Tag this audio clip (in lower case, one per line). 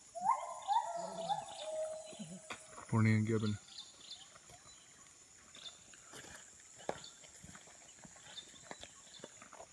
gibbon howling